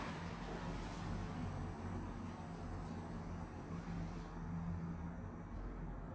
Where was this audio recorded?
in an elevator